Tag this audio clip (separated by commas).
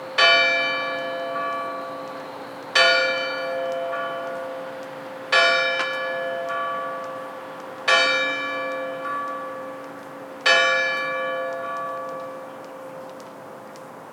Bell, Church bell